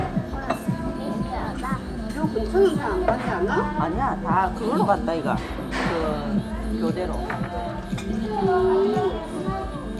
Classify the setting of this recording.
restaurant